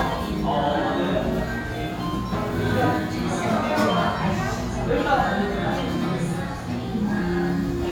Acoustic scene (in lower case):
restaurant